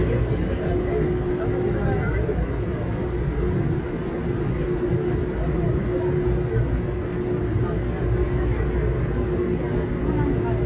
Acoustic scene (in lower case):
subway train